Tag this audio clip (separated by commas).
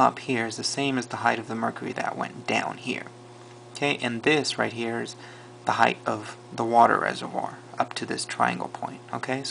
Speech